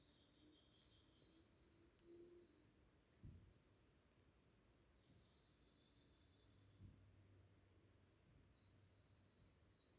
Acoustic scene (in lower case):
park